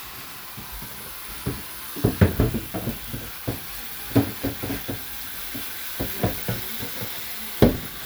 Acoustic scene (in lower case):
kitchen